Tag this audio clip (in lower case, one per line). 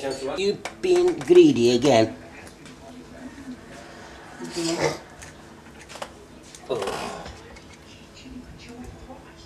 speech